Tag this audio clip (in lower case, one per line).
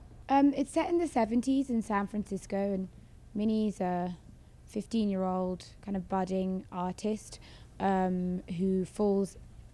speech